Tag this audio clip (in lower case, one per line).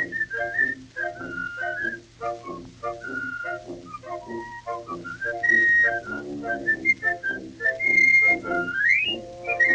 music